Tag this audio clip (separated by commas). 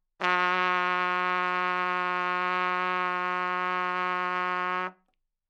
Musical instrument, Music, Brass instrument, Trumpet